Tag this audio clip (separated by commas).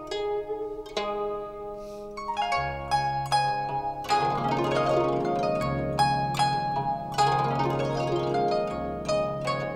playing zither